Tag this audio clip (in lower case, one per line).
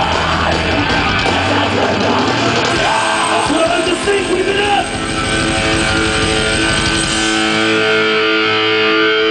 music
speech